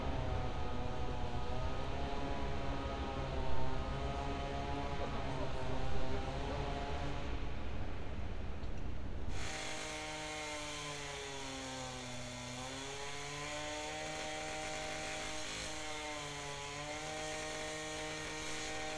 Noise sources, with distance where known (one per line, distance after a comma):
unidentified powered saw